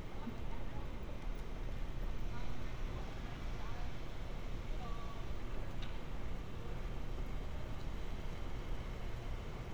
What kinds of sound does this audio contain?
unidentified human voice